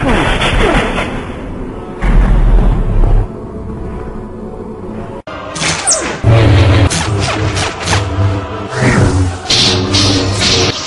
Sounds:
music

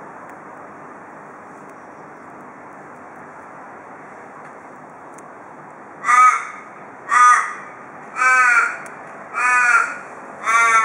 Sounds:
crow cawing

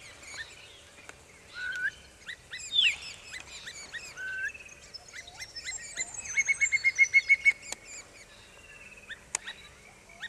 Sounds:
bird call, bird

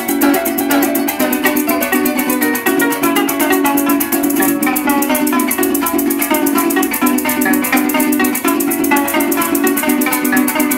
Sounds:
plucked string instrument, music, musical instrument, rattle (instrument)

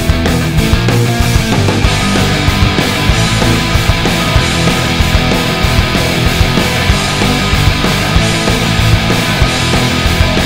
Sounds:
musical instrument, guitar, bass guitar, music, electric guitar, plucked string instrument

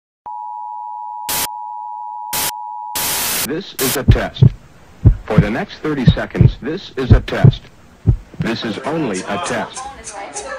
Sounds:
music, speech

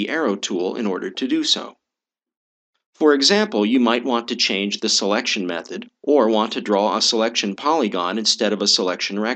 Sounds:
speech

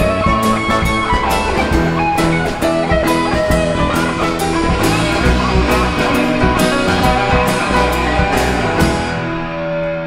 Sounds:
music

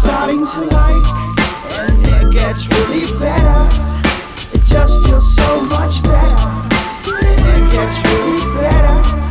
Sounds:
music, background music, funk

